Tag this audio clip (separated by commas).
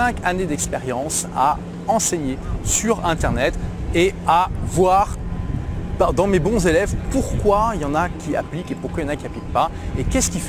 Speech